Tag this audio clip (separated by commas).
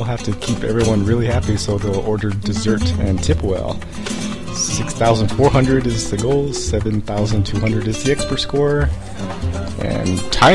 Music, Speech